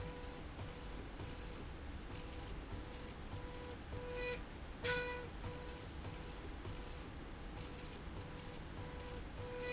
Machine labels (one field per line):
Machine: slide rail